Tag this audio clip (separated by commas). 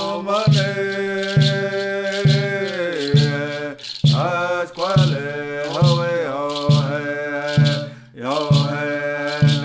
Music, Mantra